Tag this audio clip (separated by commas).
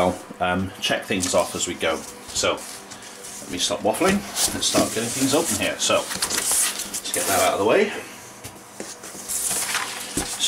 Speech